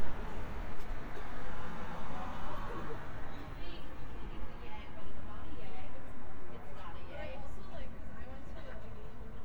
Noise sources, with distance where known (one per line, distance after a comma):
engine of unclear size
person or small group talking